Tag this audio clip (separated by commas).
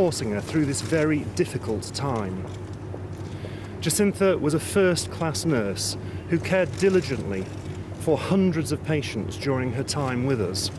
Speech